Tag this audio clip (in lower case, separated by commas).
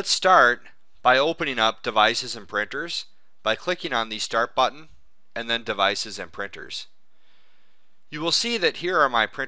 speech